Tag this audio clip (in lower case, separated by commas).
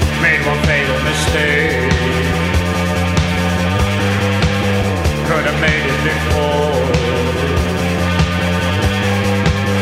music